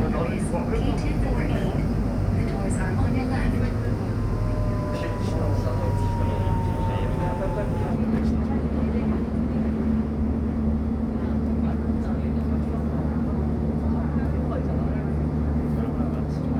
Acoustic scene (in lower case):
subway train